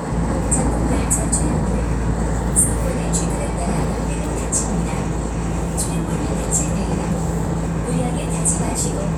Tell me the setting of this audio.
subway train